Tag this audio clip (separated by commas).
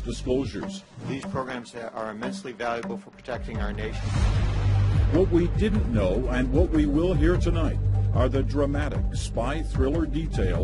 Speech